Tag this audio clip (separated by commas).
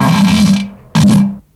Fart